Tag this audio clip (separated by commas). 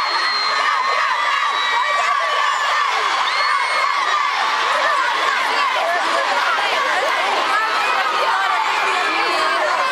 Speech